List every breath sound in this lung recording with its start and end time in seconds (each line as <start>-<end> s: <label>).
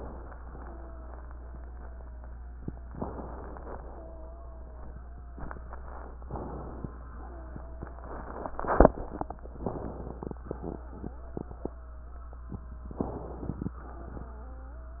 0.44-2.97 s: wheeze
2.95-3.82 s: inhalation
3.81-6.17 s: wheeze
6.18-7.05 s: inhalation
7.11-9.51 s: wheeze
9.58-10.45 s: inhalation
10.64-12.94 s: wheeze
12.97-13.77 s: inhalation
13.79-15.00 s: wheeze